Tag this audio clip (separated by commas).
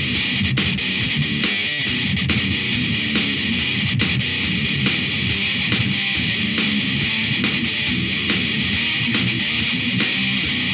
Music